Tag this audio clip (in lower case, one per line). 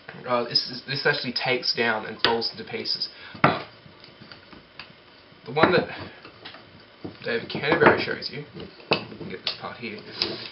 speech